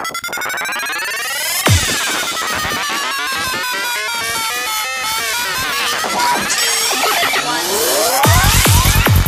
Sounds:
music, cacophony

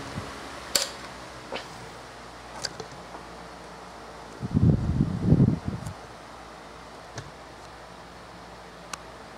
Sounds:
mechanical fan

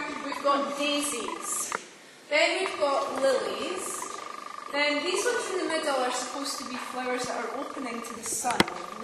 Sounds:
speech

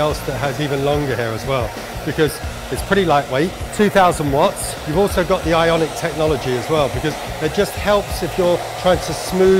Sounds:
hair dryer

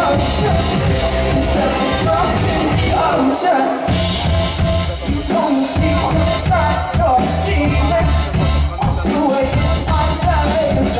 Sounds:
music, speech

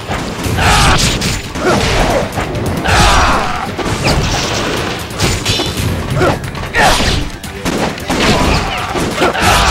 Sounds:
fusillade

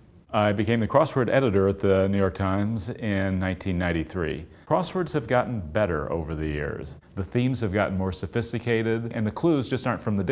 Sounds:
speech

